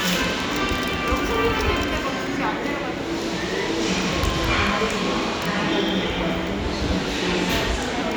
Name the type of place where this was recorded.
subway station